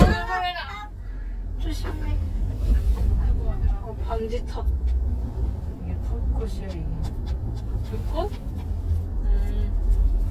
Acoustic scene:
car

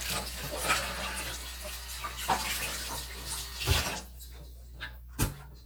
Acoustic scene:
kitchen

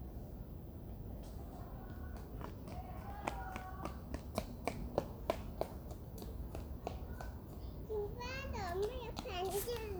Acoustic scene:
residential area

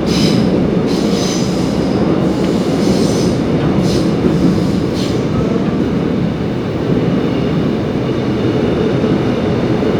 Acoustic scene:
subway train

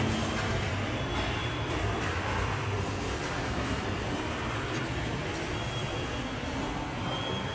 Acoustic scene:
subway station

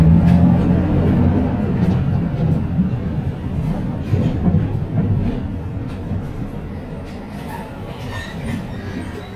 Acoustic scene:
bus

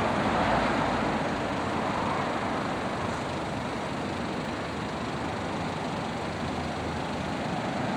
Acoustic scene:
street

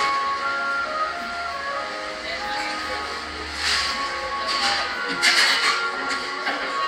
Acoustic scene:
cafe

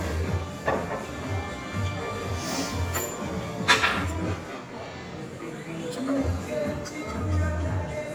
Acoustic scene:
restaurant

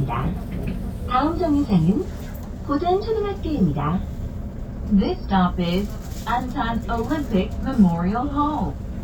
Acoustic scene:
bus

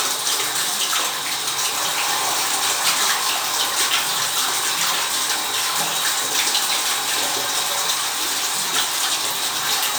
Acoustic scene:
restroom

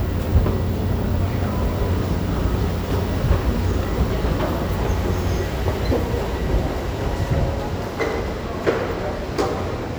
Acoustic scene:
subway station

